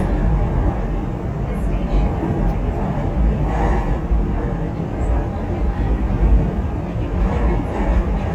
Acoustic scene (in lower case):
subway train